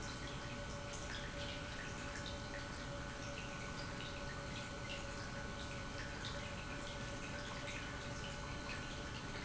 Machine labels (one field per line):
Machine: pump